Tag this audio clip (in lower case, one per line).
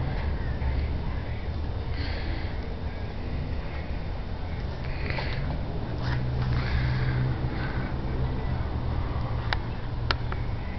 heavy engine (low frequency)